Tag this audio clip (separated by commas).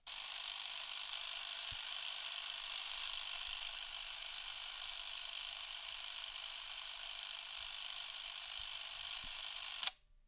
Camera, Mechanisms